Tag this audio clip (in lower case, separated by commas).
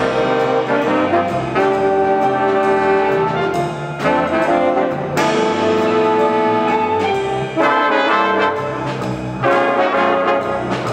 trombone, trumpet, brass instrument